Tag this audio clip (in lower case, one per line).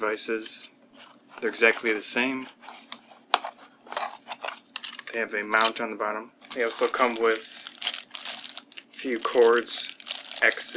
speech